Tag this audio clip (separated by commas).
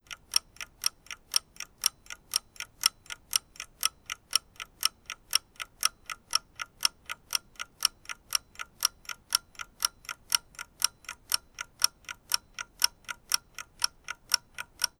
Mechanisms, Clock